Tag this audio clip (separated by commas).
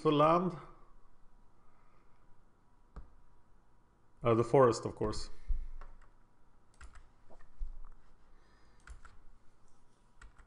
Speech